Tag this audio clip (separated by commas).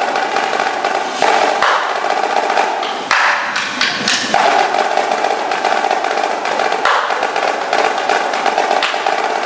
Percussion, Drum, Snare drum